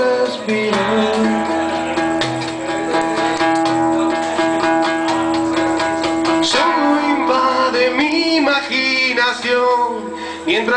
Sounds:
musical instrument
plucked string instrument
strum
music
guitar

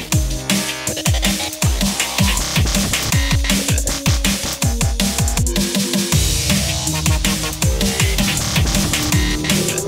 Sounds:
dubstep
music

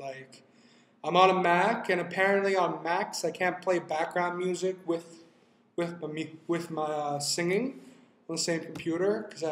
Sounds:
speech

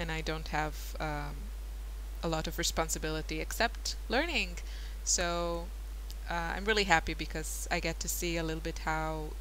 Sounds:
monologue

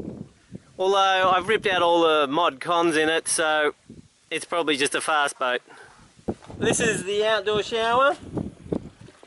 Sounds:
speech

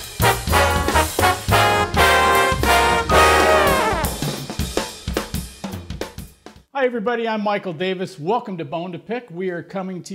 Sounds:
brass instrument
trombone

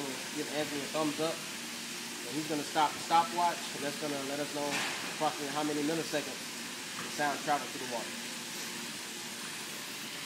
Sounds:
speech

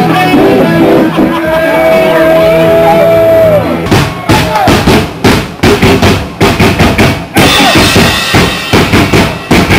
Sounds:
rock and roll
speech
music

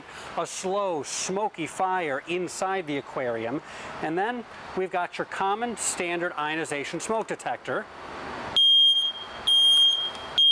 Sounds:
speech

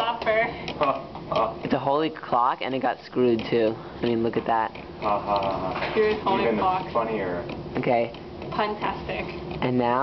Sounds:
tick-tock
speech
tick

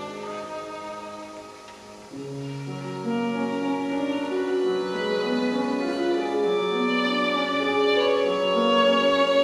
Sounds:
music
musical instrument
violin

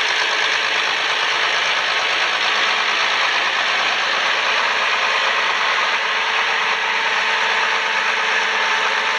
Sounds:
vehicle
heavy engine (low frequency)

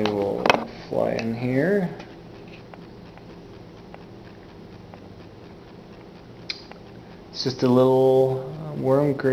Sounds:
speech

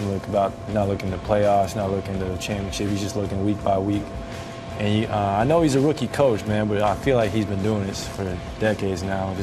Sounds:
music
speech

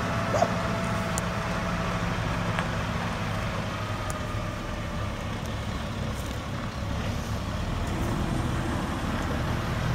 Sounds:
vehicle
truck

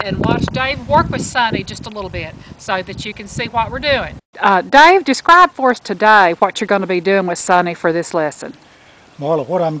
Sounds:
speech

